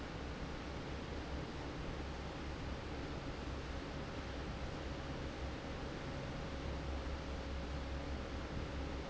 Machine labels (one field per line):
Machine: fan